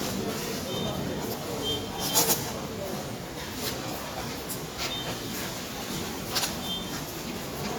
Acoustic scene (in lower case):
subway station